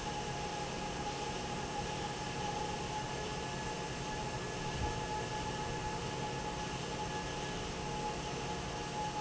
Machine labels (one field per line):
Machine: fan